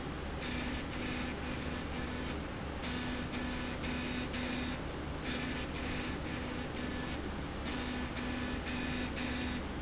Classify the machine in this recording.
slide rail